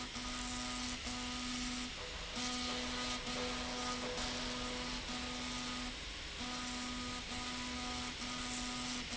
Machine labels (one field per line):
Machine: slide rail